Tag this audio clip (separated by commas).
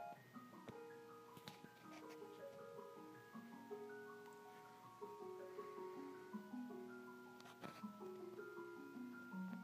Music